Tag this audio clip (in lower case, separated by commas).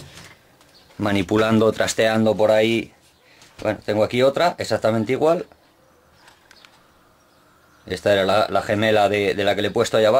arc welding